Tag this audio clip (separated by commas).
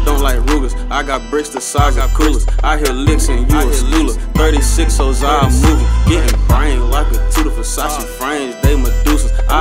Music